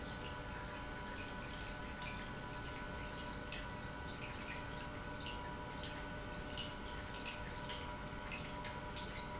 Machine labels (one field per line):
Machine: pump